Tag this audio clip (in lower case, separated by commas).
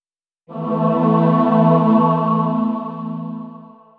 singing, music, musical instrument, human voice